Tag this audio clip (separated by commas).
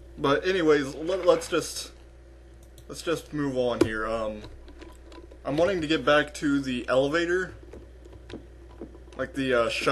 Speech